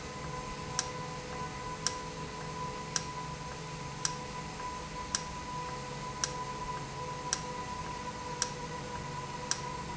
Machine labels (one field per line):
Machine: valve